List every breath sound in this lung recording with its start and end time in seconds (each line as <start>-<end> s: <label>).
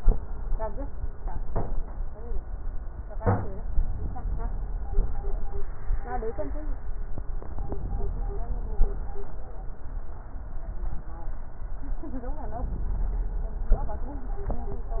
7.17-8.78 s: inhalation
8.78-9.46 s: exhalation
12.37-13.65 s: inhalation
13.65-14.46 s: exhalation